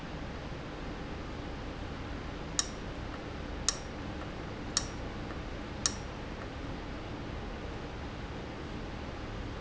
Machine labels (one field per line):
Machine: valve